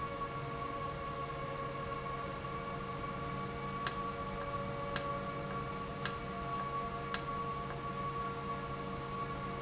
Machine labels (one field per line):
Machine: valve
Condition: normal